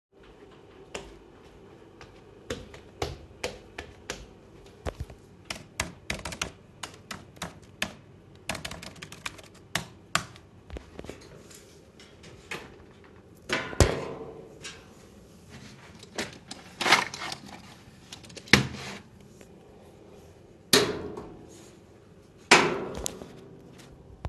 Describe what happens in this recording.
I walked to the notebook, typed something, opend a drawer, took something out and closed the drawer again.